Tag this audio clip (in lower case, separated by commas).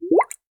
water, gurgling